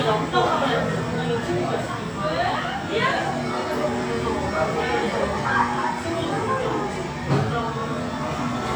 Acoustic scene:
cafe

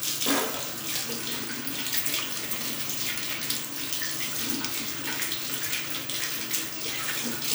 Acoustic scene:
restroom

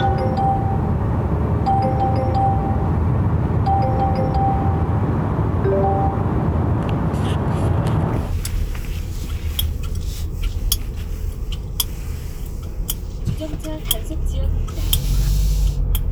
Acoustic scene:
car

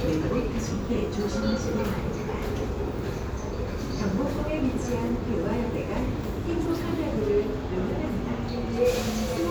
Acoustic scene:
subway station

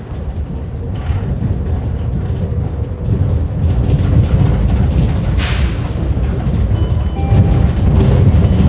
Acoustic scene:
bus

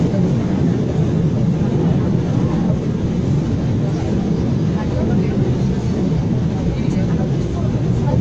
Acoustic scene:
subway train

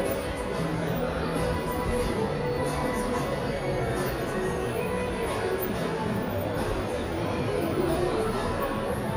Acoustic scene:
crowded indoor space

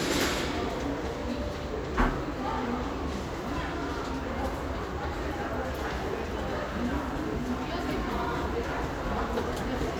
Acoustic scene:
crowded indoor space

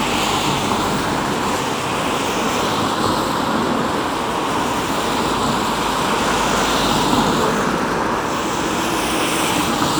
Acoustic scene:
street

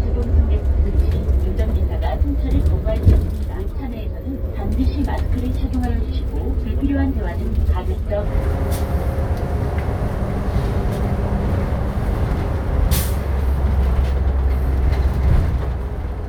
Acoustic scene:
bus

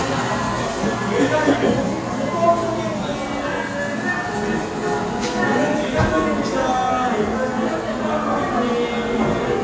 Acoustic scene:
cafe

